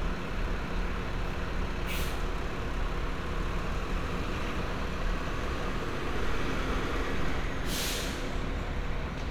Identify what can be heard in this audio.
large-sounding engine